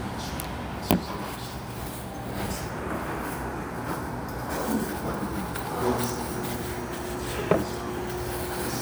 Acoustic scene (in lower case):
restaurant